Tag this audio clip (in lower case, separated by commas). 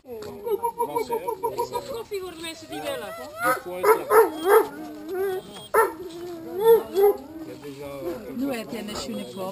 domestic animals, bow-wow, animal, dog, speech, bark, outside, rural or natural